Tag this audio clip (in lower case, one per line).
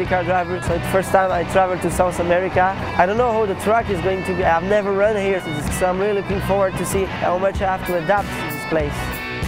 speech
music